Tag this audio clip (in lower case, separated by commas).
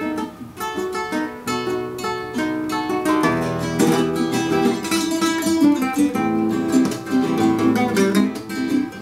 guitar, musical instrument, music, plucked string instrument